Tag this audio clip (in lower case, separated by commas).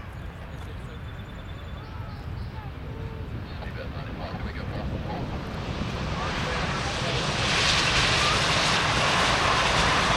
airplane, vehicle, outside, urban or man-made, speech